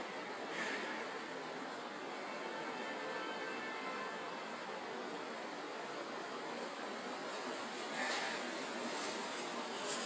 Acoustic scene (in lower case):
residential area